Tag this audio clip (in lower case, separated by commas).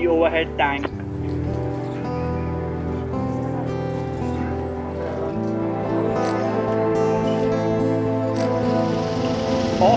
music, speech